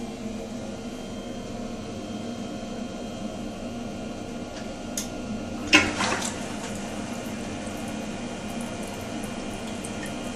Silence followed by water clanking and water dripping